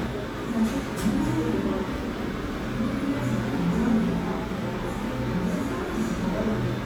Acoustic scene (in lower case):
cafe